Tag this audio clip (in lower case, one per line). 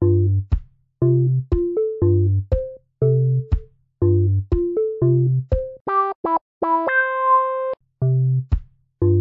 music